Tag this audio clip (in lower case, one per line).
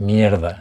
speech
man speaking
human voice